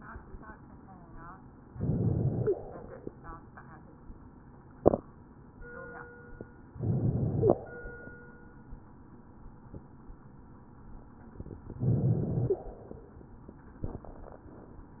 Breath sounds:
1.75-2.49 s: inhalation
2.46-2.55 s: stridor
2.50-3.38 s: exhalation
6.81-7.55 s: inhalation
7.40-7.54 s: stridor
7.60-8.15 s: exhalation
11.83-12.58 s: inhalation
12.47-12.58 s: stridor
12.56-13.38 s: exhalation

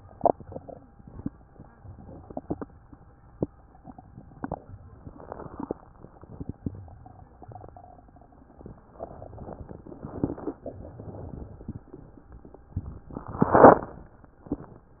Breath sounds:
8.95-10.17 s: inhalation
10.15-10.56 s: crackles
10.17-10.63 s: exhalation
10.63-11.79 s: inhalation

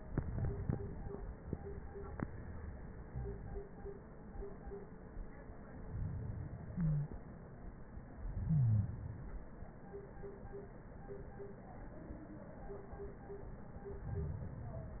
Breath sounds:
5.71-7.21 s: inhalation
6.71-7.17 s: wheeze
8.13-9.63 s: inhalation
8.46-8.92 s: wheeze
13.47-14.97 s: inhalation

